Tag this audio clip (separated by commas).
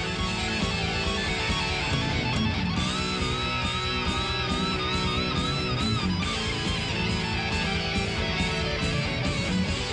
Musical instrument, Electric guitar, Music, Plucked string instrument, Guitar